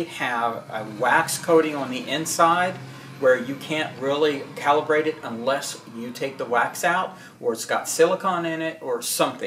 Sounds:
Speech

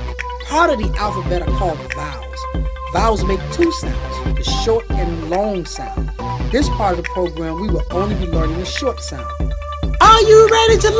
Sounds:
Music, Speech

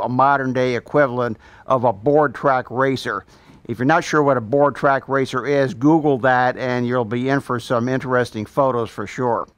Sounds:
Speech

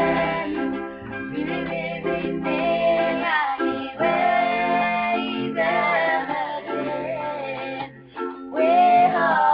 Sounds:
Music

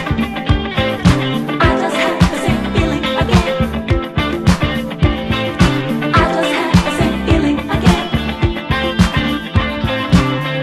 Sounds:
Exciting music, Music

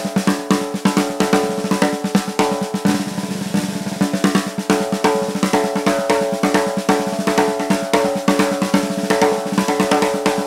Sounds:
playing snare drum, Snare drum, Drum, Percussion, Music, Musical instrument

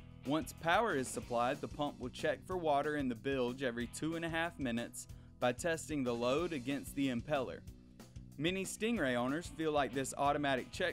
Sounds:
Music, Speech

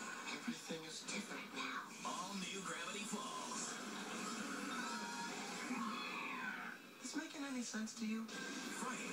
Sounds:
Speech

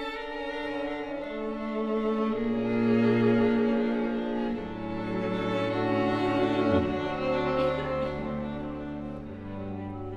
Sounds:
Double bass, Bowed string instrument, Cello, Violin

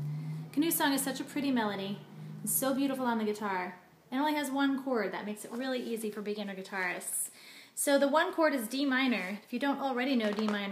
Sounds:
Speech

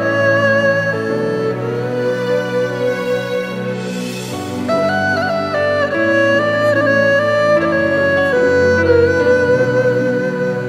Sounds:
playing erhu

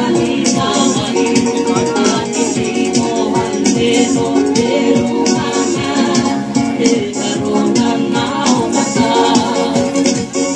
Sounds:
Music, Maraca

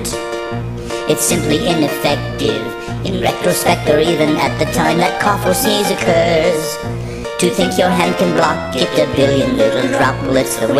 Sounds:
Music

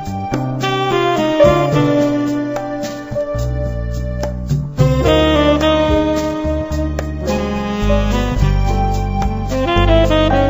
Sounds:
Music

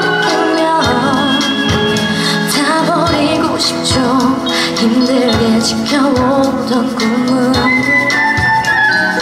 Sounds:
Traditional music, Music

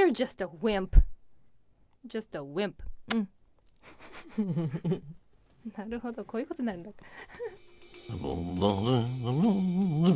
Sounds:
Speech, Music

